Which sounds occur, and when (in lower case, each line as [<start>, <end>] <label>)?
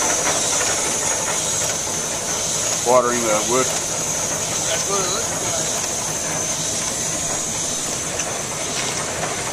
[0.00, 9.52] mechanisms
[2.77, 5.29] conversation
[2.82, 3.66] male speech
[4.61, 5.20] male speech
[8.11, 8.23] tick
[8.64, 9.00] footsteps